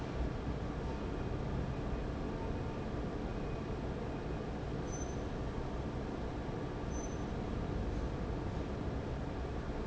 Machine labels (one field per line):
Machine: fan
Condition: abnormal